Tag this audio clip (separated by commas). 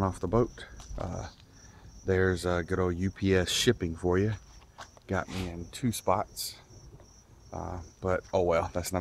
Speech